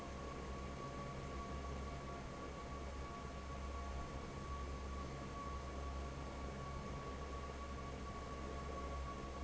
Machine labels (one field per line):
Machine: fan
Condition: normal